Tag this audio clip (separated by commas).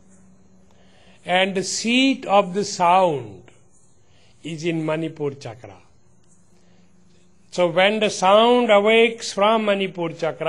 Speech